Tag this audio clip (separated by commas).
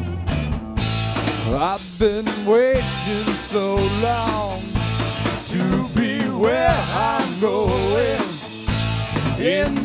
Rock music, Music, Guitar, Percussion, Psychedelic rock, Musical instrument